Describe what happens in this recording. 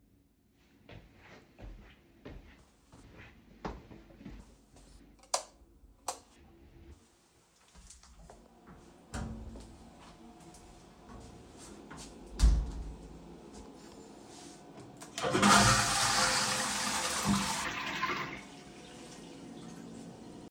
I walked to the bathroom door,lighed the swich,open the door,enter,close the door and flush the toilet.